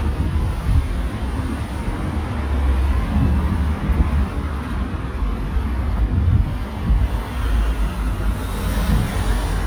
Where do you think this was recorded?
on a street